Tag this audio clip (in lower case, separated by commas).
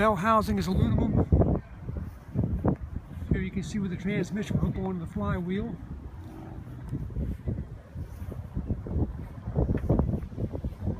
speech